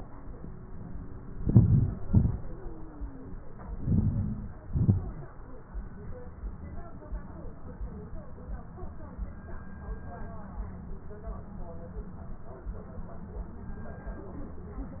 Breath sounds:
1.43-1.92 s: inhalation
2.08-2.42 s: exhalation
3.81-4.51 s: inhalation
4.67-5.26 s: exhalation

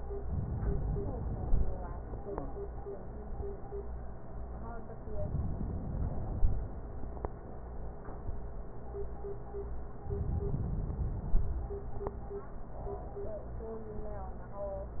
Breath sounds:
0.28-1.78 s: inhalation
5.17-6.92 s: inhalation
10.04-11.54 s: inhalation

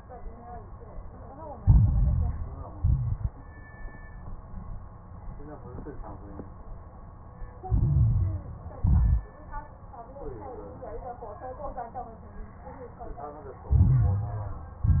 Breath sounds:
1.59-2.77 s: inhalation
1.59-2.77 s: crackles
2.79-3.32 s: exhalation
2.79-3.32 s: crackles
7.66-8.83 s: inhalation
7.66-8.83 s: crackles
8.85-9.23 s: exhalation
8.85-9.23 s: crackles
13.68-14.82 s: inhalation
13.68-14.82 s: crackles
14.88-15.00 s: exhalation
14.88-15.00 s: crackles

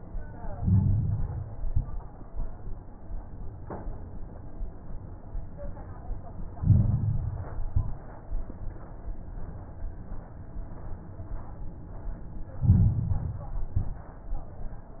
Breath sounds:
0.47-1.50 s: inhalation
0.47-1.50 s: crackles
1.58-2.12 s: exhalation
1.58-2.12 s: crackles
6.55-7.62 s: inhalation
7.64-8.19 s: exhalation
7.64-8.19 s: crackles
12.64-13.66 s: inhalation
12.64-13.66 s: crackles
13.70-14.25 s: exhalation
13.70-14.25 s: crackles

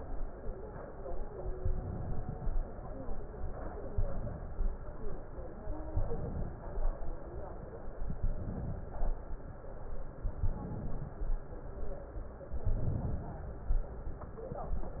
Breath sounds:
1.56-2.53 s: inhalation
3.94-4.75 s: inhalation
5.88-6.79 s: inhalation
8.03-8.82 s: inhalation
10.20-11.21 s: inhalation
12.51-13.51 s: inhalation

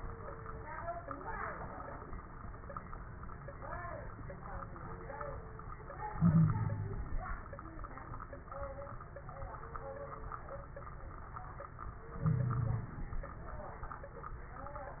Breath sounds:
6.12-7.19 s: inhalation
6.18-7.01 s: wheeze
12.15-13.17 s: inhalation
12.24-12.91 s: wheeze

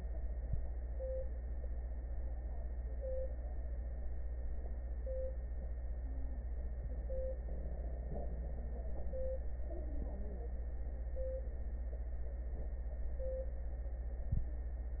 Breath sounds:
6.00-6.55 s: wheeze

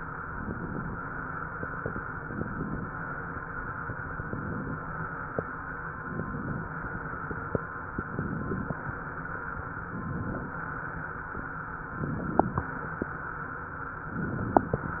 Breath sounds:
0.20-1.00 s: inhalation
0.20-1.00 s: crackles
2.05-2.85 s: inhalation
2.05-2.85 s: crackles
3.98-4.78 s: inhalation
3.98-4.78 s: crackles
5.93-6.73 s: inhalation
5.93-6.73 s: crackles
7.96-8.76 s: inhalation
7.96-8.76 s: crackles
9.83-10.63 s: inhalation
9.83-10.63 s: crackles
11.92-12.73 s: inhalation
11.92-12.73 s: crackles
14.14-14.94 s: inhalation
14.14-14.94 s: crackles

